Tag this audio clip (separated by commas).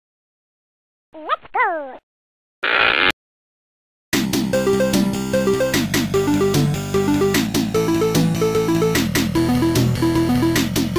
Music